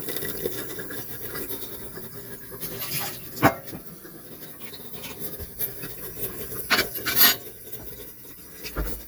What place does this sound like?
kitchen